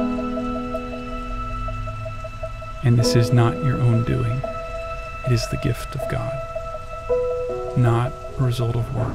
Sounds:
outside, urban or man-made, music, speech

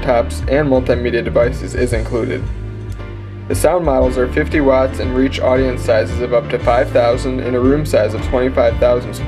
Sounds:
music, speech

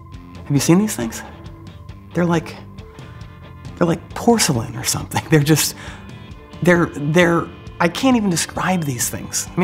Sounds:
speech, music

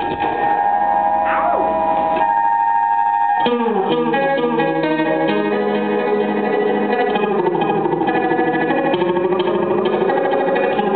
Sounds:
keyboard (musical), musical instrument

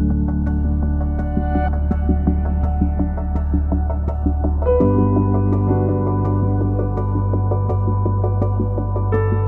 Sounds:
music

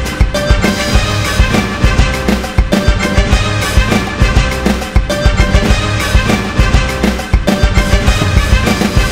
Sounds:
music

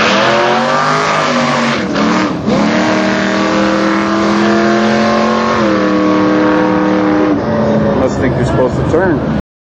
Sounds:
vehicle, speech, car

